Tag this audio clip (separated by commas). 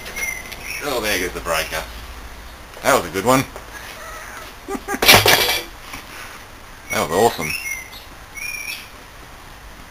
Speech